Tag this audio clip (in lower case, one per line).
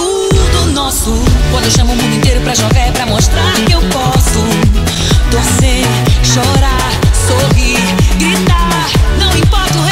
dance music